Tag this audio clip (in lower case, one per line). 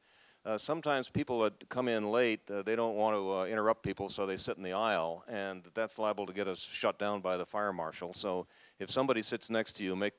speech